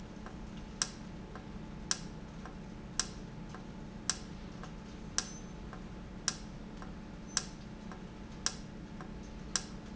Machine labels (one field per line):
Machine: valve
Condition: normal